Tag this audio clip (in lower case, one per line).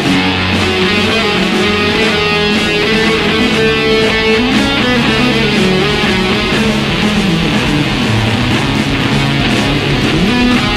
music